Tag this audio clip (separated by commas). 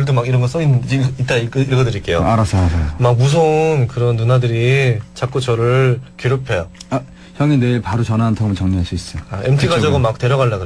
Speech